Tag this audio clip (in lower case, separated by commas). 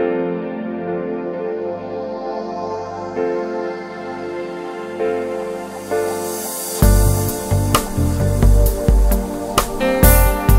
trance music, music